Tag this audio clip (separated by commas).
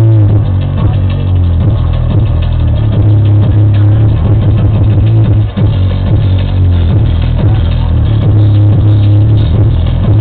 Music, speech babble